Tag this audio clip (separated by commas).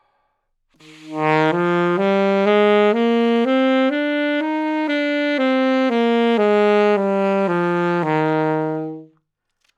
Musical instrument, Wind instrument, Music